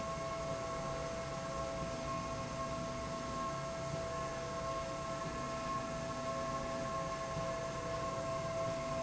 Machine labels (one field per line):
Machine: slide rail